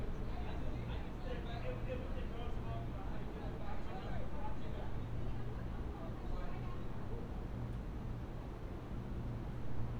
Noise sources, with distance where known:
unidentified human voice, far

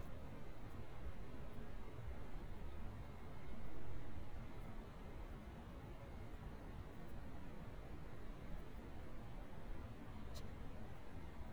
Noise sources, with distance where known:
background noise

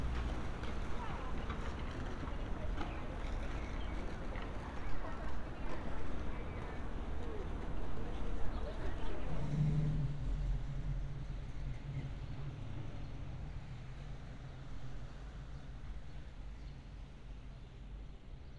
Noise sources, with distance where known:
medium-sounding engine

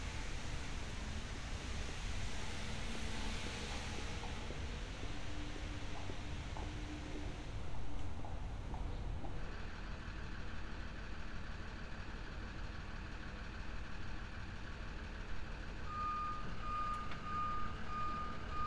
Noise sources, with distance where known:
engine of unclear size

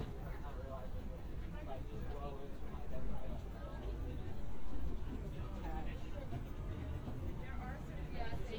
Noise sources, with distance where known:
person or small group talking, near

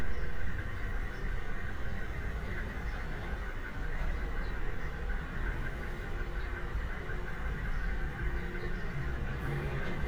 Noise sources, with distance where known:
large-sounding engine

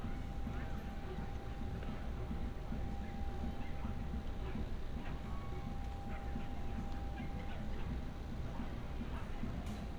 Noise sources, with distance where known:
person or small group talking, far

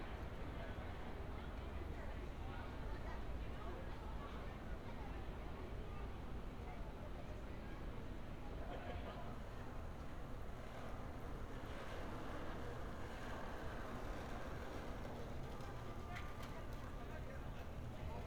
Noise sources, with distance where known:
unidentified human voice

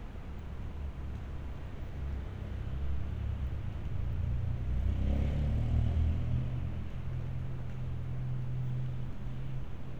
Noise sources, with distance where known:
medium-sounding engine

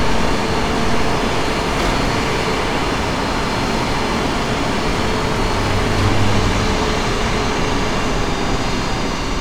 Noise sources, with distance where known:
large-sounding engine, near
unidentified impact machinery

